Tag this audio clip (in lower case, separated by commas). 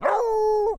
domestic animals, dog, animal